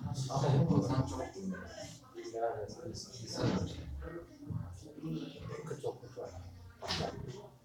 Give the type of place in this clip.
crowded indoor space